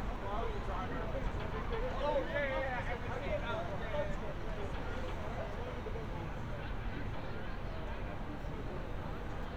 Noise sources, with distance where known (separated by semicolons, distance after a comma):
person or small group talking, near